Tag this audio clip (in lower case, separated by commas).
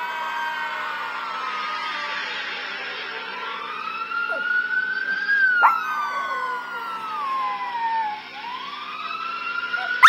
domestic animals, dog, howl, animal